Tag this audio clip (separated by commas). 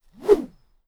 swish